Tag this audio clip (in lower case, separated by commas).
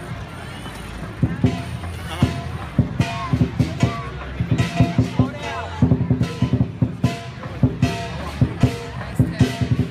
speech, music